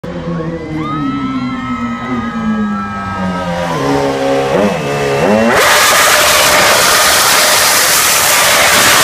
People are cheering as a car revs its engine